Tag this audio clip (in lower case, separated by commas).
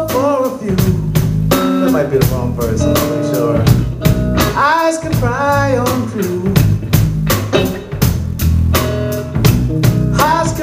speech, music